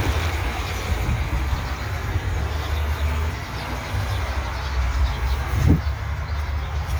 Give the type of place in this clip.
park